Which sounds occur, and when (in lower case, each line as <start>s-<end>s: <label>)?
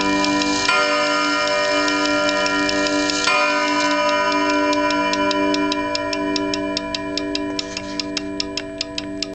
0.0s-9.2s: alarm
0.1s-0.2s: tick
0.4s-0.4s: tick
0.6s-0.7s: tick
1.0s-1.1s: tick
1.2s-1.3s: tick
1.4s-1.5s: tick
1.6s-1.7s: tick
1.8s-1.9s: tick
2.0s-2.1s: tick
2.2s-2.3s: tick
2.4s-2.5s: tick
2.6s-2.7s: tick
2.8s-2.9s: tick
3.0s-3.1s: tick
3.4s-3.5s: tick
3.6s-3.7s: tick
3.8s-3.9s: tick
4.0s-4.1s: tick
4.3s-4.3s: tick
4.4s-4.5s: tick
4.7s-4.7s: tick
4.9s-4.9s: tick
5.1s-5.2s: tick
5.2s-5.3s: tick
5.5s-5.5s: tick
5.7s-5.7s: tick
5.9s-6.0s: tick
6.1s-6.2s: tick
6.3s-6.4s: tick
6.5s-6.6s: tick
6.7s-6.8s: tick
6.9s-7.0s: tick
7.1s-7.2s: tick
7.3s-7.4s: tick
7.5s-7.6s: tick
7.6s-8.1s: surface contact
7.7s-7.8s: tick
7.9s-8.0s: tick
8.1s-8.2s: tick
8.3s-8.4s: tick
8.5s-8.6s: tick
8.8s-8.9s: tick
9.0s-9.0s: tick